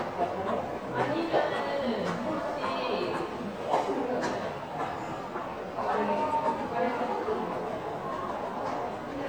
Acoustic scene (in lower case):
crowded indoor space